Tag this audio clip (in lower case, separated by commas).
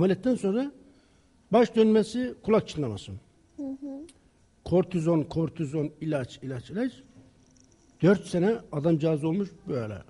speech